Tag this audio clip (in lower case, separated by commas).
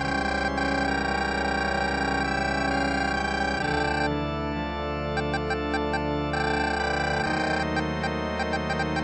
music